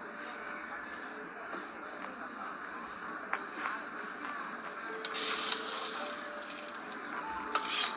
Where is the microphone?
in a cafe